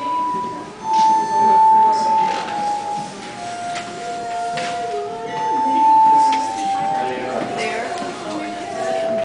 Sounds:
speech
music

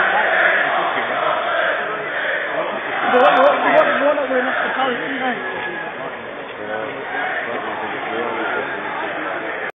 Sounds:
speech

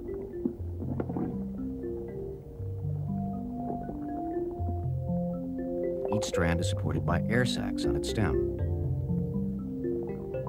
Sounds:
music
speech

